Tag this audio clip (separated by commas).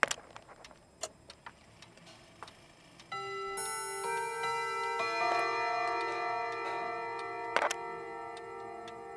Music